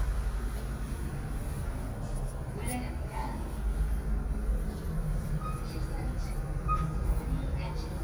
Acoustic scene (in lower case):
elevator